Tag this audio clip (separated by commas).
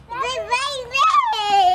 Human voice, Speech